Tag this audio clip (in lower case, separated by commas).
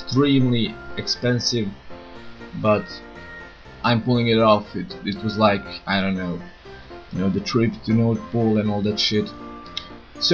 speech, music